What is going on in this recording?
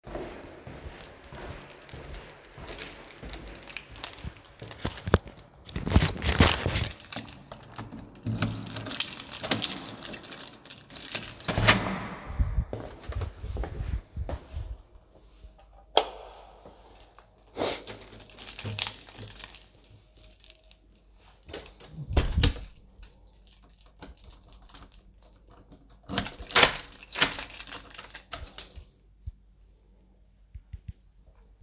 I walked down the hallway with the keys in my hand, I inserted the key in the lock, unlocked the door, opend the door, turned on the light, removed the key, Closed and locked the door